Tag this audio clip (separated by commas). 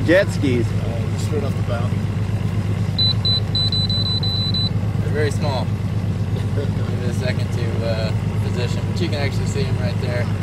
Speech